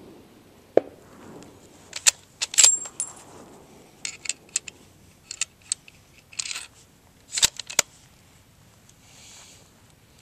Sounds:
outside, rural or natural

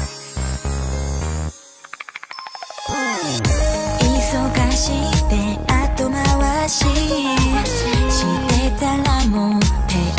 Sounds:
Music of Asia, Music

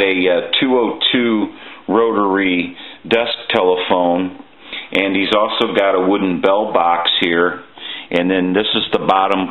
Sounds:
Speech

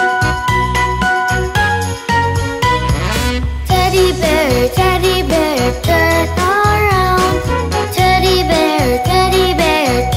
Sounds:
Music

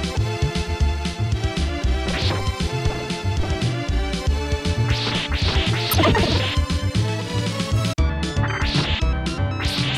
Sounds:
Music

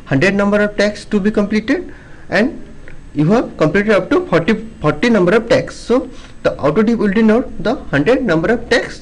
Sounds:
Speech

